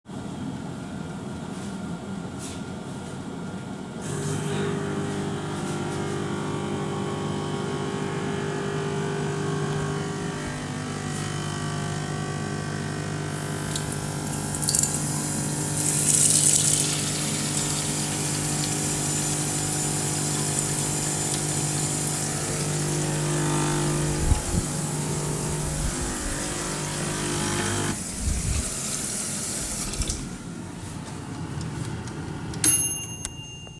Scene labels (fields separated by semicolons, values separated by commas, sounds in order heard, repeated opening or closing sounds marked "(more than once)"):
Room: kitchen; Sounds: microwave, coffee machine, running water